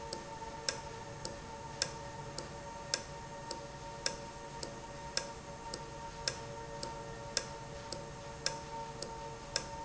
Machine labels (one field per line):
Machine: valve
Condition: normal